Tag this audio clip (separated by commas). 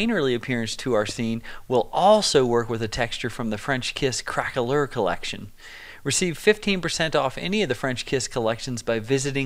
Speech